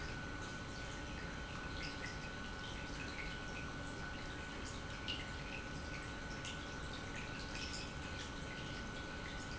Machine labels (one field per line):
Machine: pump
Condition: normal